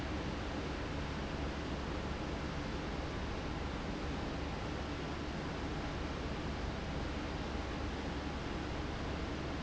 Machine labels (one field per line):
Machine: fan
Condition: abnormal